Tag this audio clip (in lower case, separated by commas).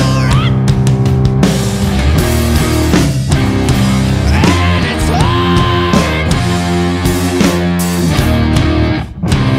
heavy metal, music, singing